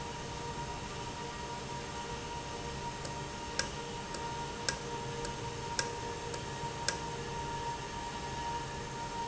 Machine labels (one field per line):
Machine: valve